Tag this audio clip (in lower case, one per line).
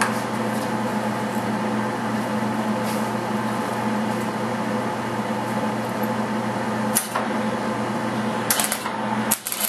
inside a large room or hall
vehicle